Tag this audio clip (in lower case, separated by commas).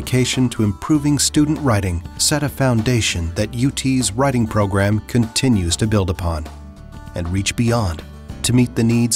speech, music